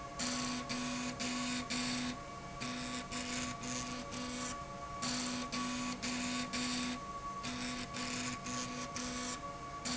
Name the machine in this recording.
slide rail